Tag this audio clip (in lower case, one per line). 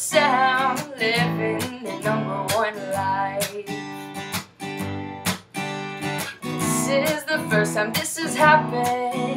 music